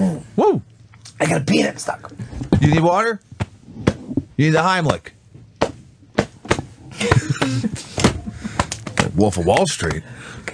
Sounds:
Speech

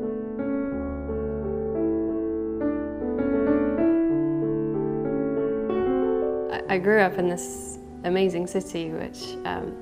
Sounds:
Music, Speech

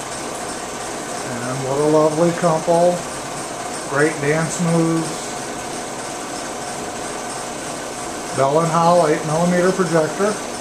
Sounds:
Speech

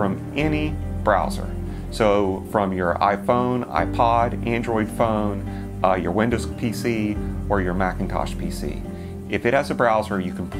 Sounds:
Music, Speech

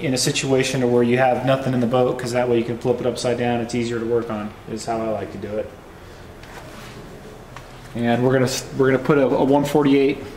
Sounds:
Speech

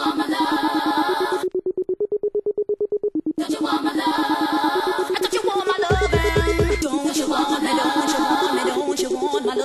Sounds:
Music, Electronic music

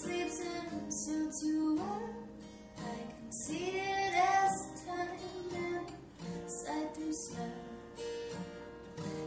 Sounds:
Music

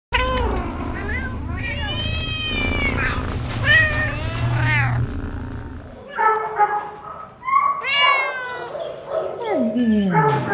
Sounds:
Bark, Cat, Domestic animals, Dog, Animal, Speech, Bow-wow

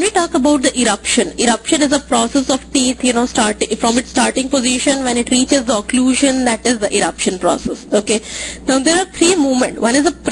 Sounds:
Speech

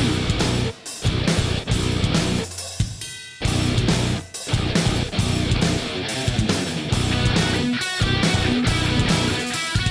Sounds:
Music

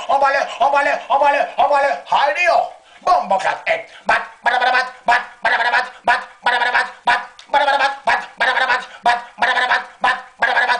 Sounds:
Speech

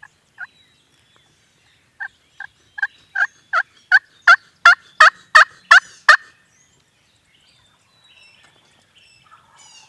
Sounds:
turkey gobbling

